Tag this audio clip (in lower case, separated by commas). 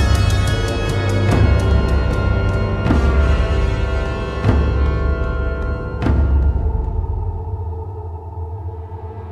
music